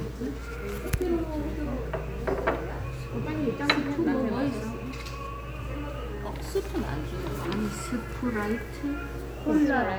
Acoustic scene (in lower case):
restaurant